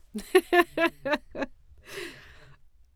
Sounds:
human voice, laughter

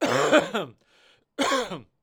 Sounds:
respiratory sounds, cough

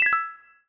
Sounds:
mallet percussion, percussion, music, marimba, musical instrument

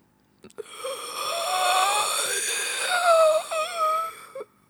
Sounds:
breathing, respiratory sounds

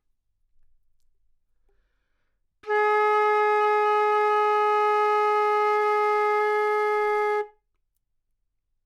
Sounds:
musical instrument, music, woodwind instrument

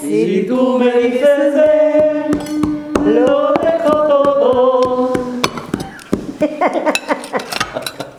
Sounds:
laughter, human voice

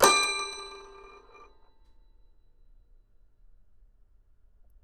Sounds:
music, keyboard (musical), musical instrument

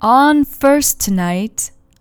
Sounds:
speech, female speech, human voice

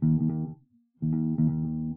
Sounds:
plucked string instrument, musical instrument, guitar, music, bass guitar

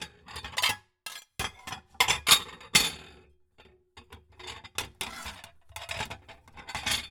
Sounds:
chink, dishes, pots and pans, home sounds, glass

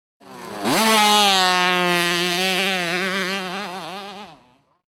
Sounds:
motorcycle, vehicle, motor vehicle (road)

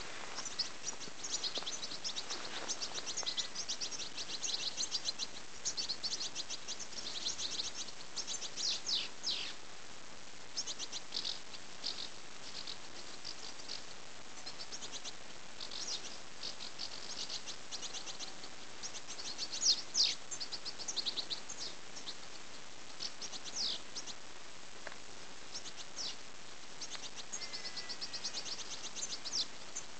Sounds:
wild animals, bird call, animal, bird

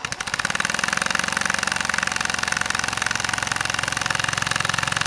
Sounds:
tools

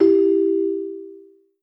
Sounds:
ringtone, telephone, alarm

